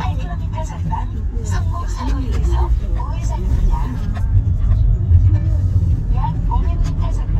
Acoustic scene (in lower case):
car